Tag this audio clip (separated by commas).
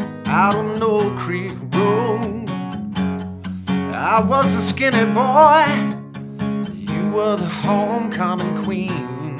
Acoustic guitar, Singing, Plucked string instrument, Music, Musical instrument, Guitar